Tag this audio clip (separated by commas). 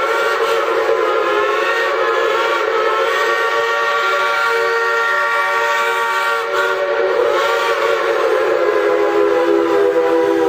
train whistling